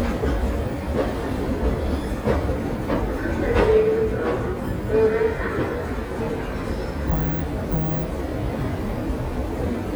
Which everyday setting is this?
subway station